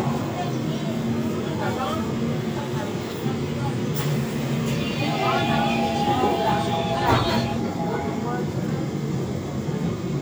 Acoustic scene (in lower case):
subway train